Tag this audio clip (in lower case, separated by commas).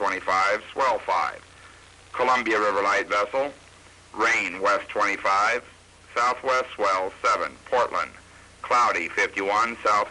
speech